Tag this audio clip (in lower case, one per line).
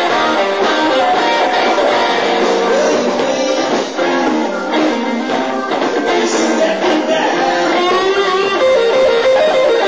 guitar
musical instrument
music
drum kit
bass guitar
plucked string instrument
rock music